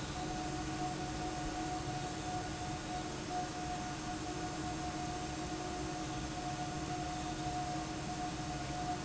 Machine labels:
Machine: fan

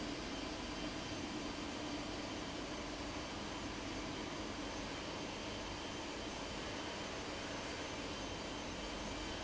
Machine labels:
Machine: fan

